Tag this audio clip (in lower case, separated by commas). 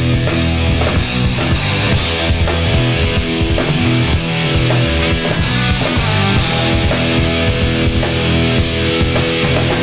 music